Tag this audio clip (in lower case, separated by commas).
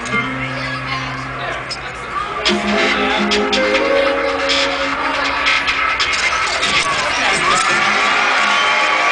music, speech